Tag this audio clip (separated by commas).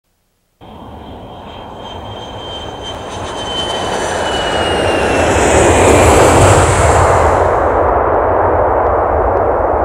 Aircraft engine, Aircraft